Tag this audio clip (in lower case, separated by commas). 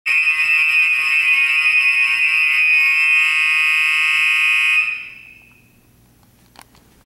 fire alarm, buzzer